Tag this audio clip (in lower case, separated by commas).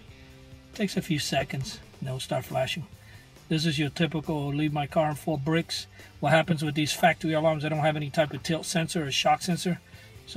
music, speech